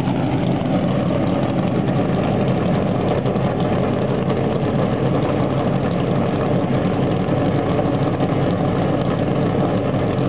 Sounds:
vehicle, car, idling, engine

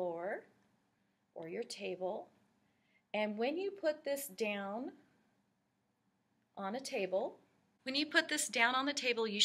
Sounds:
speech

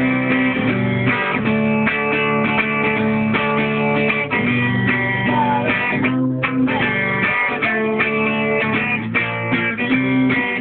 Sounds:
plucked string instrument, strum, musical instrument, guitar, music

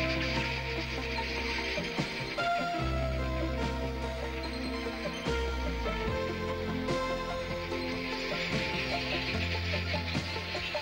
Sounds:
music

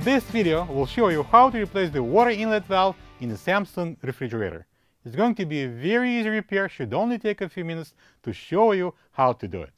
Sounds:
speech, music

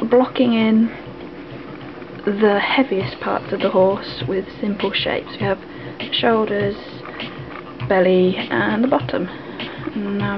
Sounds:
music, speech

